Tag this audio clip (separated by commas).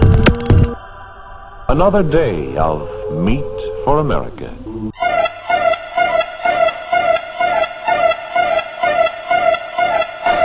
Music, Speech